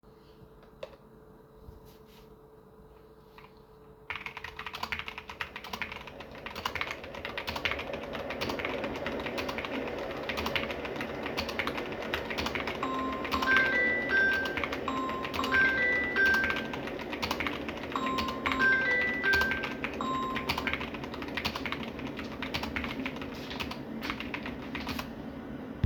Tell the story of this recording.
phone rings as my kettle is boiling water while Iam typing on my keyboard